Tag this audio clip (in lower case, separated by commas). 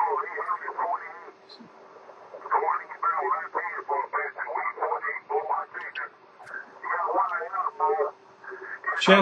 radio, speech